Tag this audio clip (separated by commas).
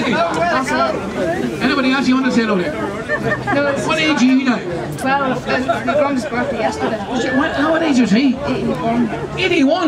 Speech